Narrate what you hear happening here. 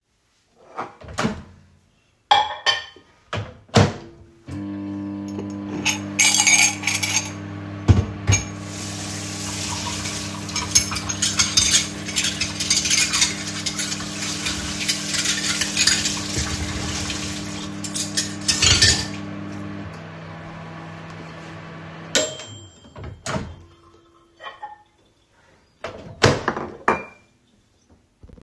I grabbed a plate and opened the microwave to reheat my food. While the microwave was on, I grabbed the dishes next to it and placed them on the sink. I turned on the water and washed them while the microwave waas reheating my food. After that, I took the plate off the microwave.